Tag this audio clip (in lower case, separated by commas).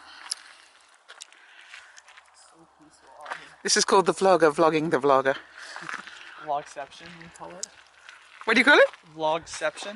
speech, outside, rural or natural